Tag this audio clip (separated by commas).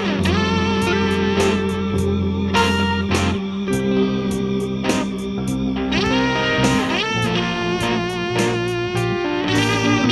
Music